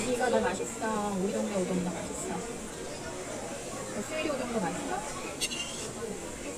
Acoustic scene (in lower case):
restaurant